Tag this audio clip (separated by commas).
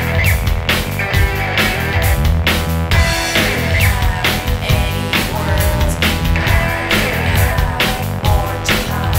Music, Disco